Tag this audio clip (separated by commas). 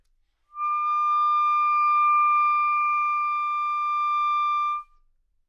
Musical instrument, Music, Wind instrument